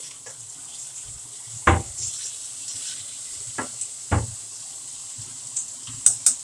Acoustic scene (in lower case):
kitchen